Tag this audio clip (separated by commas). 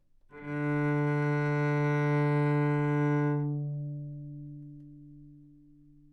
Bowed string instrument, Music, Musical instrument